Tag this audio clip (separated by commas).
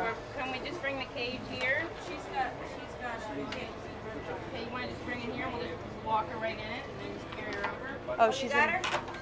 Speech